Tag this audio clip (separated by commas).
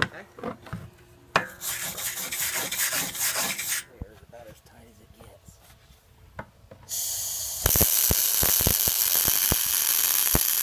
Speech